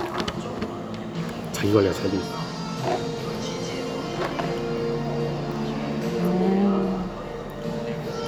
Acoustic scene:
cafe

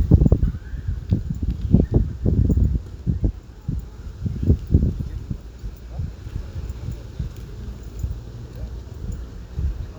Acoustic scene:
residential area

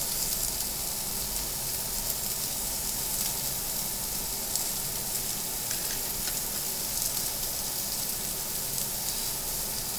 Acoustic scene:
restaurant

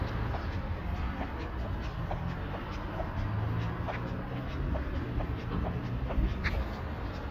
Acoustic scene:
street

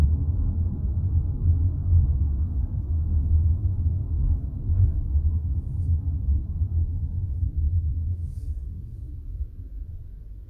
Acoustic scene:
car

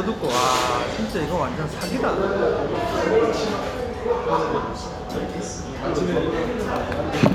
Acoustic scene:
restaurant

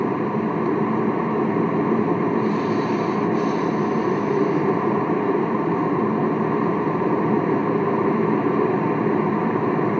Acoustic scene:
car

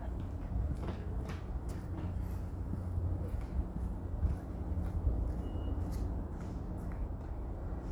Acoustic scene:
residential area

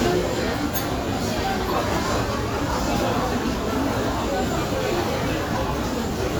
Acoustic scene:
restaurant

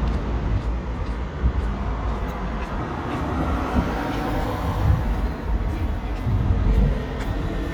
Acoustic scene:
residential area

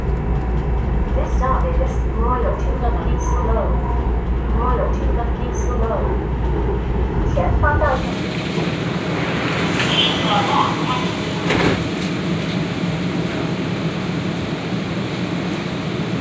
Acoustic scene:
subway train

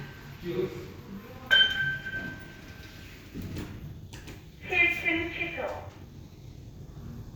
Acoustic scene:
elevator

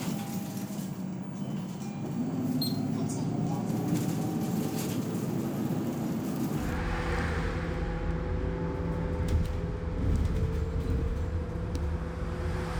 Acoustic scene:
bus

